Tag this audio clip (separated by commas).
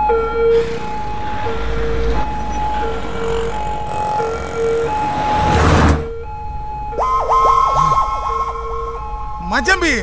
Speech